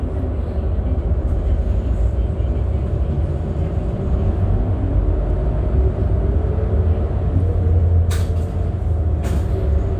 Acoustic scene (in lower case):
bus